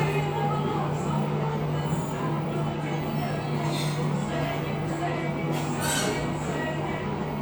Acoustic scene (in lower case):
cafe